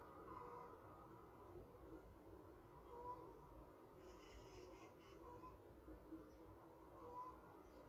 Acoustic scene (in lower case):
park